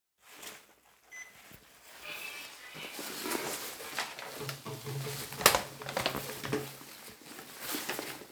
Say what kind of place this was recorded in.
elevator